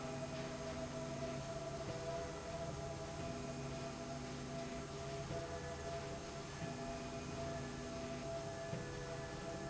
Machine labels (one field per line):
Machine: slide rail